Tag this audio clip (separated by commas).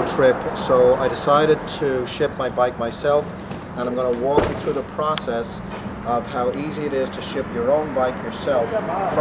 Speech